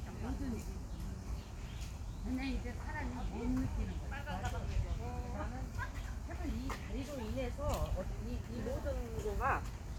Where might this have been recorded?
in a park